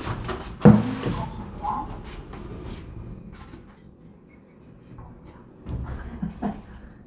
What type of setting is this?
elevator